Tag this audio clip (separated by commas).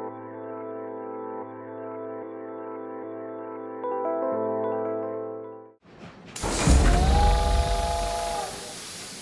Music